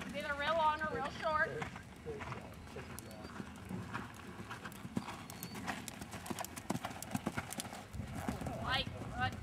A horse is walking while a female is speaking